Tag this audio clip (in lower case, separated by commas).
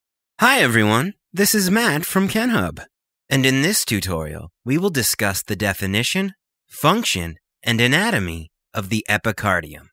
speech